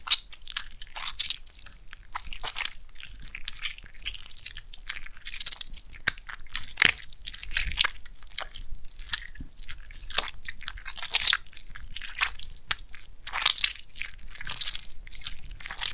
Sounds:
mastication

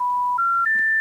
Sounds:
telephone, alarm

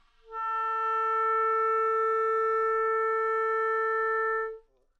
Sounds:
wind instrument, music, musical instrument

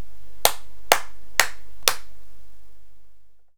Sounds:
hands

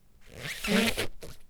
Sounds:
squeak

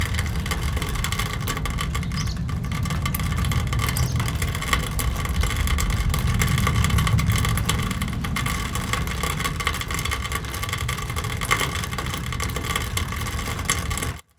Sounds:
rain, water

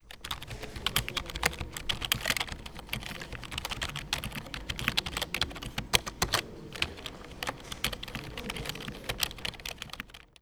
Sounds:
typing, computer keyboard, domestic sounds

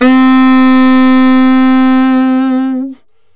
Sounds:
musical instrument, music, wind instrument

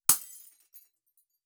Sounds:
shatter, glass

